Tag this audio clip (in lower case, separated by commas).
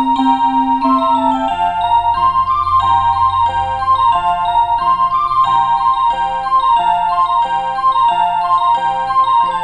music